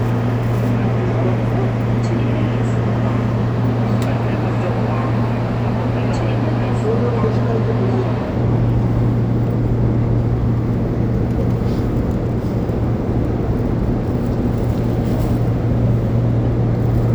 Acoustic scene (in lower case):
subway train